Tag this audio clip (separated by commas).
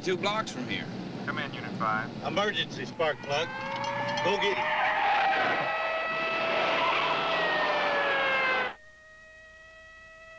Car passing by